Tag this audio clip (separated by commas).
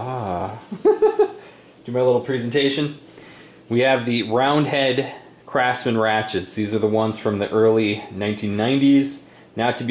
Speech